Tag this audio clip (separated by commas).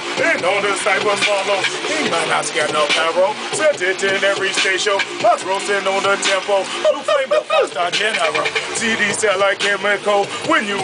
Music